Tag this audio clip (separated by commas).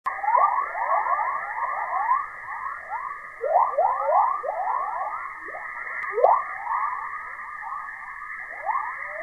Chorus effect